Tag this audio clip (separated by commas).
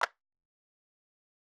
Clapping, Hands